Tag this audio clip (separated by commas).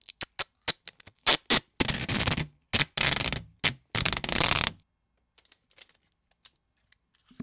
duct tape, Domestic sounds